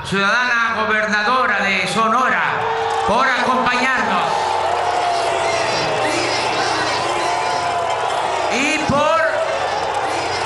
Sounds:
people booing

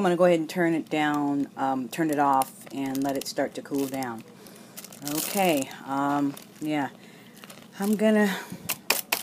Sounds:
Speech

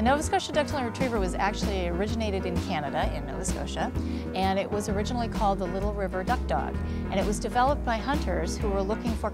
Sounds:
Speech, Music

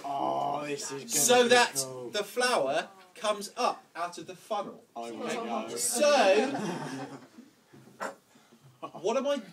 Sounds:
Speech

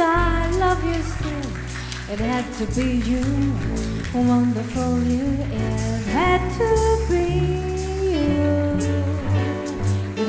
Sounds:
Wedding music, Jazz, Music

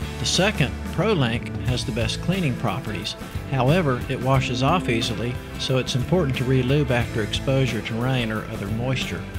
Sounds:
Music, Speech

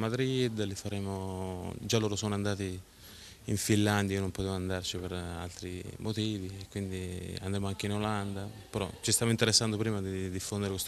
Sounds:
Speech

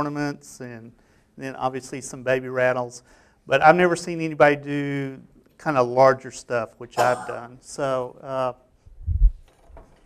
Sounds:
Speech

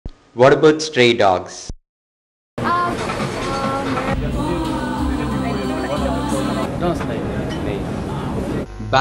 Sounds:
Speech, Music

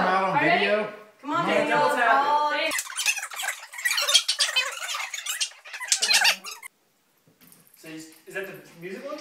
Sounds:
Speech, inside a large room or hall

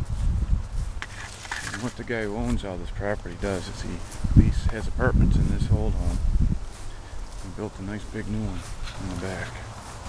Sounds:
Speech

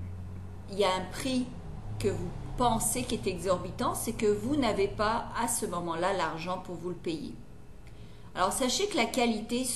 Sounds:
Speech

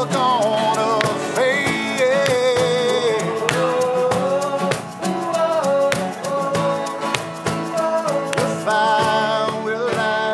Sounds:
Country

